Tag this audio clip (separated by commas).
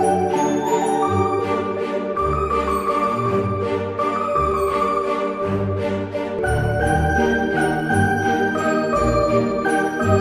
New-age music, Music